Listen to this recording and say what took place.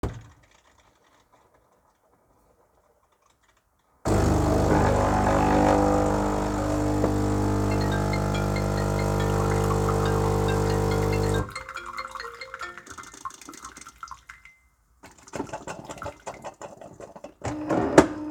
I started the coffee machine in the kitchen. While the machine was running a phone notification rang nearby. The two sounds overlapped for a short time.